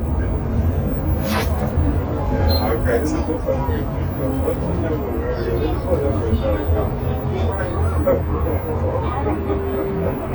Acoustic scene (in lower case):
bus